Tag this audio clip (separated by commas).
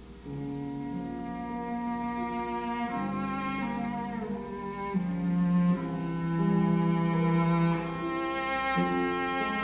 Music, Bowed string instrument, Cello